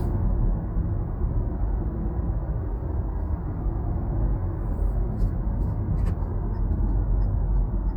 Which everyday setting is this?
car